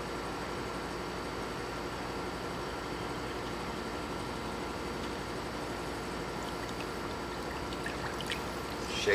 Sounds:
speech

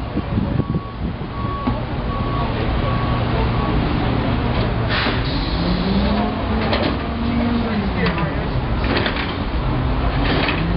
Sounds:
speech

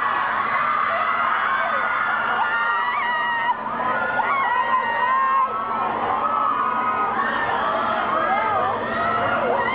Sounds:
speech, vehicle

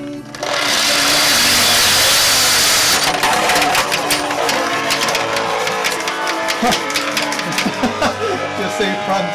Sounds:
speech, music, singing

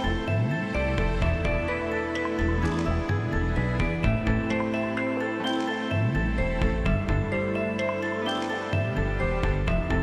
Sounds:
music, soundtrack music

